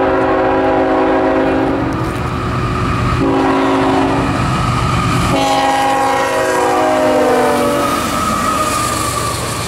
A train blows is horn several times as it passes by at a quick pace